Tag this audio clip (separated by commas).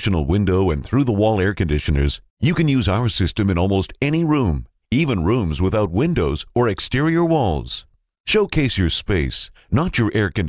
Speech